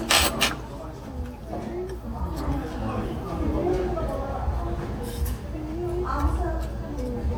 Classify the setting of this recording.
restaurant